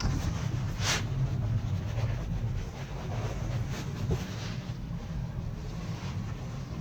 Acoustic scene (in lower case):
car